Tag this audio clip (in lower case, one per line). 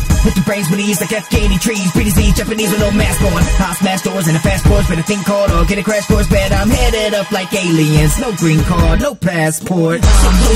music